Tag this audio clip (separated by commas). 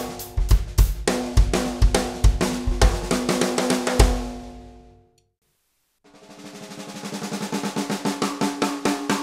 Music, Drum, Musical instrument